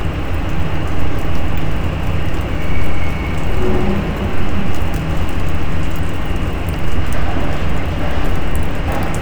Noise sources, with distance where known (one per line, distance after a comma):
engine of unclear size